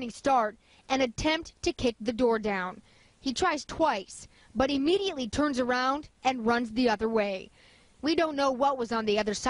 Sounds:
Speech

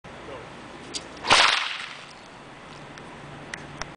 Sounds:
Whip

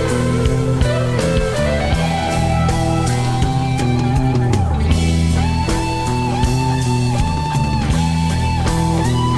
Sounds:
Music, Rock music

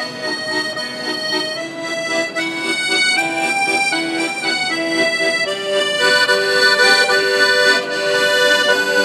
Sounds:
playing accordion

